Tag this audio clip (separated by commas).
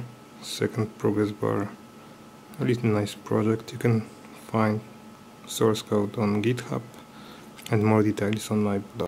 Speech